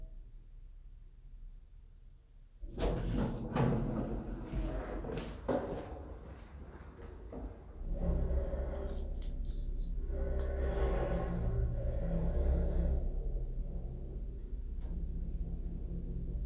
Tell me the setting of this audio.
elevator